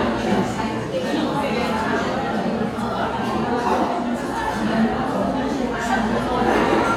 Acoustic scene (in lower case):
crowded indoor space